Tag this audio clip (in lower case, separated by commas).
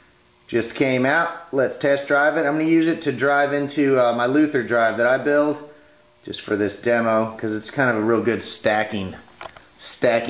speech